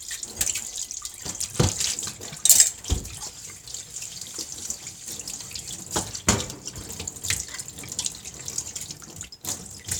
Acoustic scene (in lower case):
kitchen